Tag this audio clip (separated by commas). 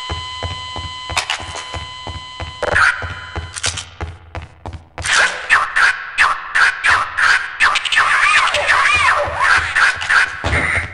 inside a small room